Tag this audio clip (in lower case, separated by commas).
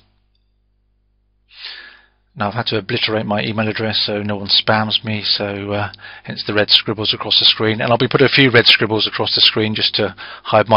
speech